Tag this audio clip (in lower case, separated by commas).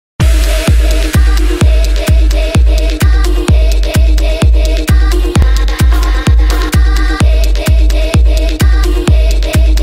music, electronic dance music